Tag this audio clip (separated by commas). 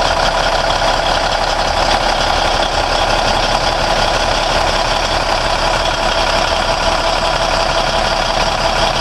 Vehicle